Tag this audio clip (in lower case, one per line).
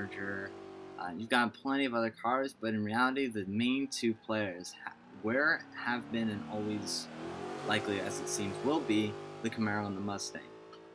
speech
vehicle
motor vehicle (road)
car
car passing by